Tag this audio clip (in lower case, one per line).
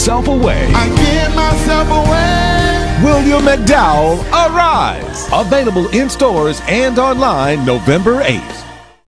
music
television
speech